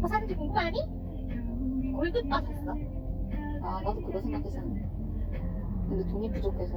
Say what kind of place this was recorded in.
car